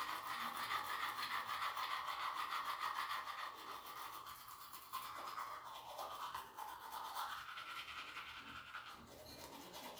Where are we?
in a restroom